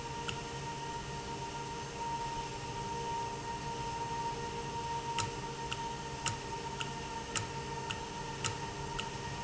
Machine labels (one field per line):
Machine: valve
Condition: normal